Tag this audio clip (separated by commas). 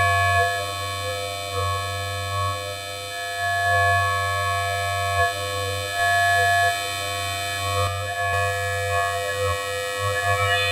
Sound effect